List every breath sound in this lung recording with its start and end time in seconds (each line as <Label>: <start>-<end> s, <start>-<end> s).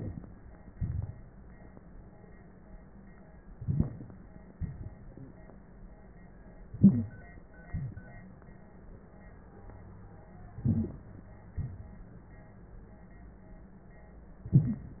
Inhalation: 3.57-4.25 s, 6.74-7.32 s, 10.61-11.32 s
Exhalation: 0.78-1.33 s, 4.59-5.56 s, 7.71-8.43 s, 11.58-12.56 s
Wheeze: 3.65-4.03 s, 6.82-7.11 s, 10.63-10.87 s